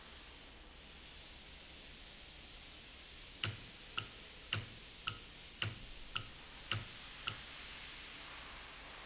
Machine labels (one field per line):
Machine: valve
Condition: normal